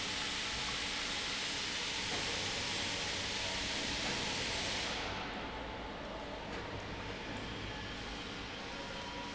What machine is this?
pump